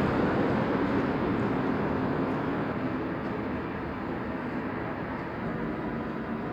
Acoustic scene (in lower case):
street